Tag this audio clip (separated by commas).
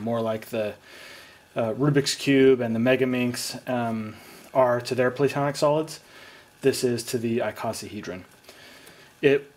Speech